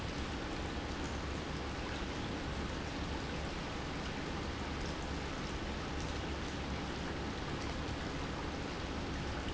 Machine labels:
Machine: pump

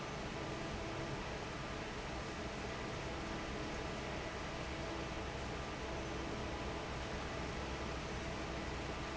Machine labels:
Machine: fan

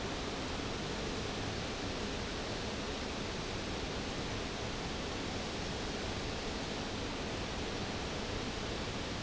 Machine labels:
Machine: fan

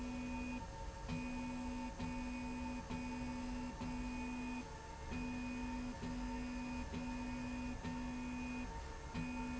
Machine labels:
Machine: slide rail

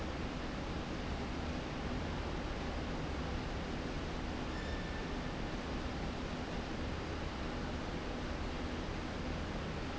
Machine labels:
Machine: slide rail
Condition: normal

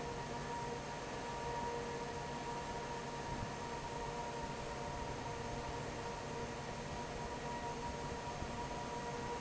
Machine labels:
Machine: fan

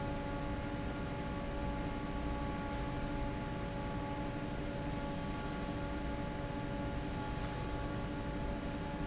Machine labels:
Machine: fan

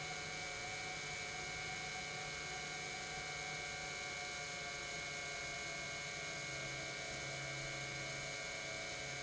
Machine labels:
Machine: pump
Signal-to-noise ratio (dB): 6 dB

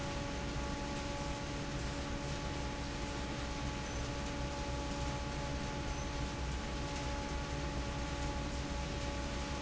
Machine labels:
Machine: fan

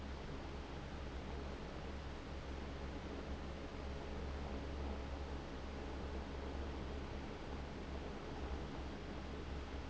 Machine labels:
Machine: fan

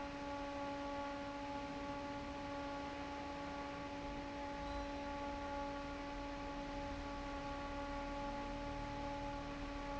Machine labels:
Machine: fan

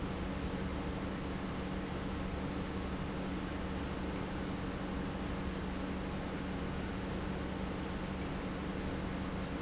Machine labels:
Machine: pump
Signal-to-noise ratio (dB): -6 dB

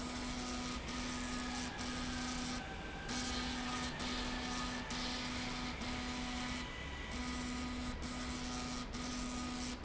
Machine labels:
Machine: slide rail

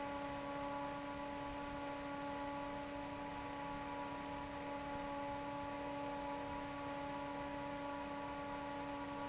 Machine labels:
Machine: fan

